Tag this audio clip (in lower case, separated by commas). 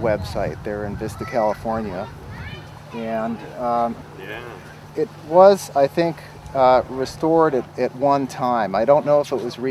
speech